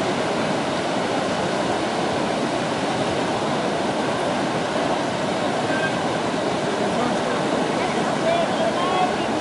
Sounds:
speech
outside, rural or natural

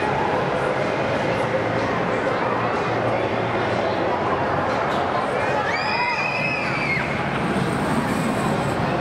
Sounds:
speech

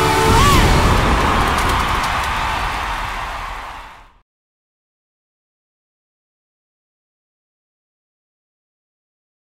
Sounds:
music

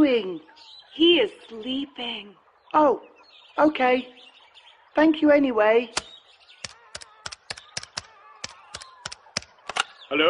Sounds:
speech

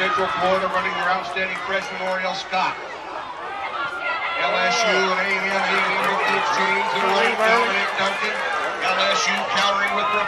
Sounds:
speech

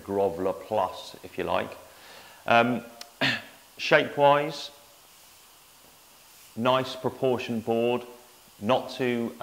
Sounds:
speech

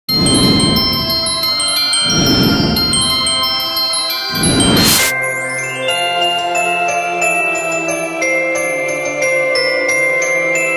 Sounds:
mallet percussion
xylophone
glockenspiel

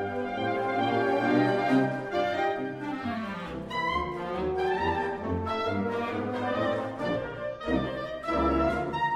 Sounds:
music
double bass
classical music
orchestra

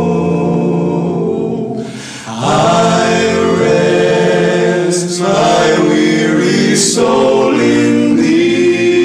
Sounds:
choir

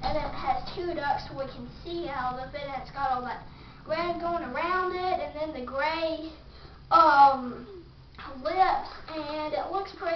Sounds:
inside a small room
speech

